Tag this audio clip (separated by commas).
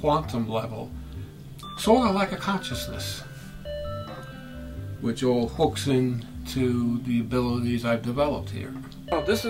Speech, Music